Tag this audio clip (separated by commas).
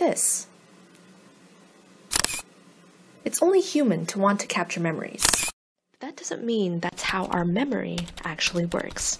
Speech